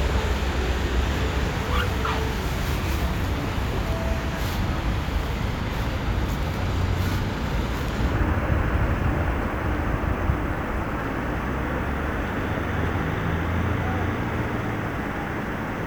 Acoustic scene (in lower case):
street